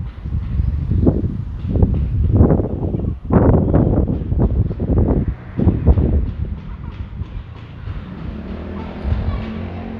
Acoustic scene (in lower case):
residential area